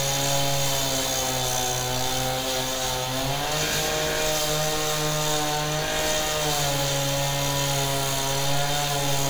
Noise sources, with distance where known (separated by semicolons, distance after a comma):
large rotating saw, near